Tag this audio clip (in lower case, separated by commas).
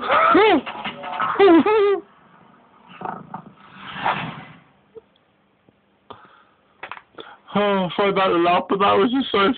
music, speech